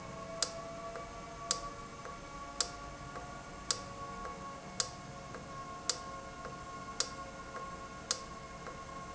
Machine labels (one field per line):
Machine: valve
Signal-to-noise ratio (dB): 0 dB